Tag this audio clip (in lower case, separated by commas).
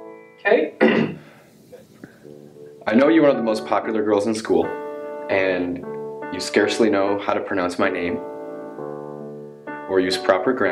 music, narration, speech